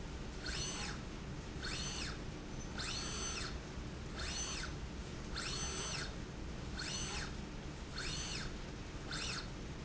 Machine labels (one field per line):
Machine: slide rail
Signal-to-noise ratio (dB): 0 dB